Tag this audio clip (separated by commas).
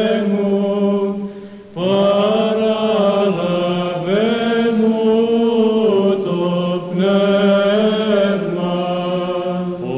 Mantra, Chant